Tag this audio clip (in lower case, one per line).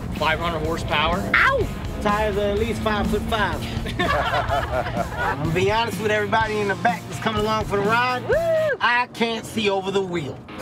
music
speech